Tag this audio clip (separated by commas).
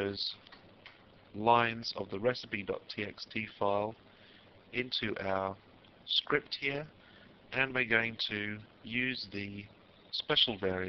Speech